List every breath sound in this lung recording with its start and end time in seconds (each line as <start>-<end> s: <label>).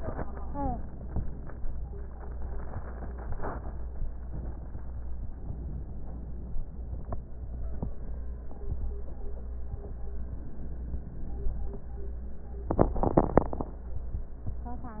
5.33-6.61 s: inhalation
10.33-11.61 s: inhalation